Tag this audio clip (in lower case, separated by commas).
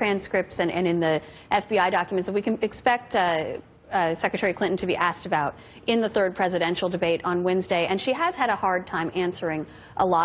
narration, speech, woman speaking